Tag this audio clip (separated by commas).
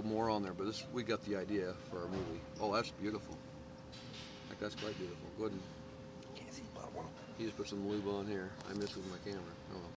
Speech